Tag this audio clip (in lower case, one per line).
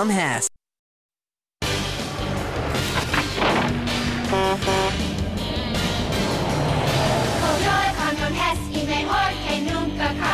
vehicle
music